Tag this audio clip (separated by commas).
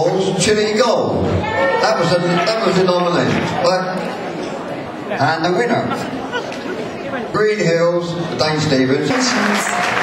Speech